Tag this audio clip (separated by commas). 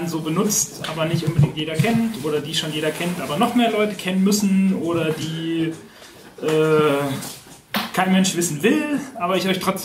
Speech